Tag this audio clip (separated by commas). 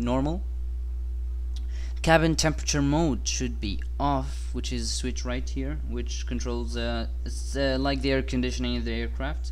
Speech